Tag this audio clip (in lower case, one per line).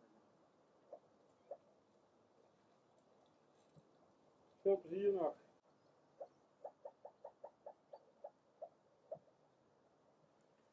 frog croaking